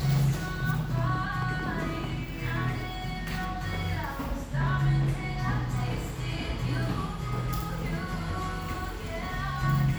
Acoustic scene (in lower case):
cafe